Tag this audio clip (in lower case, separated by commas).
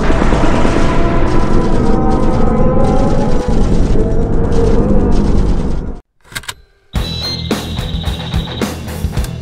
music, boom